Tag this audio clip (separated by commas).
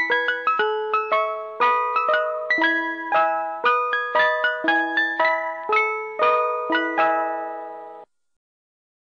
Music